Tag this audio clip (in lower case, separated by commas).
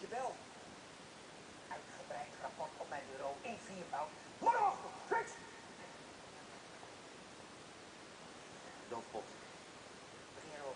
speech